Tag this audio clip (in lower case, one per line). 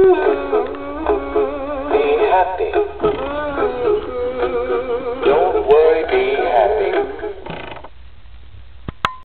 male singing
music